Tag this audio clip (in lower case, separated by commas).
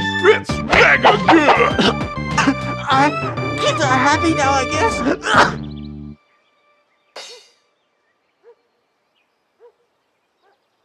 music, speech